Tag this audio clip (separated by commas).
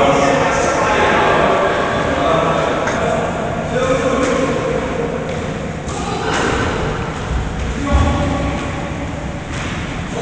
playing squash